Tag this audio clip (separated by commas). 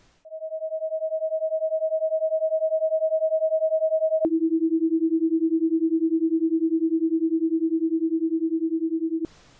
Sine wave